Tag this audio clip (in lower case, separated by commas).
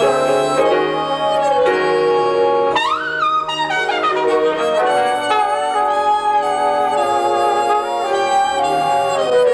inside a large room or hall, music